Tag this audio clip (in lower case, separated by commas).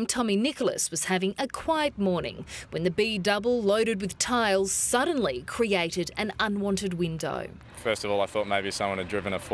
vehicle, speech